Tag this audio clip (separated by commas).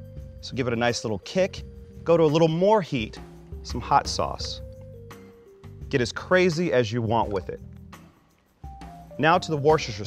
Speech, Music